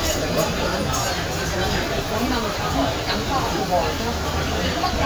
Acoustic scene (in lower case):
crowded indoor space